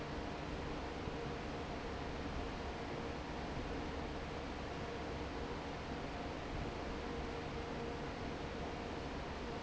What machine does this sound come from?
fan